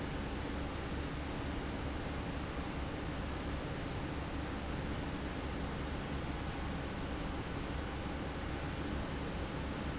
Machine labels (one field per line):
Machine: fan